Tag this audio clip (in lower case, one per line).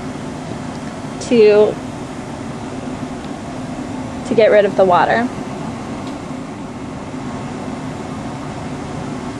speech
inside a large room or hall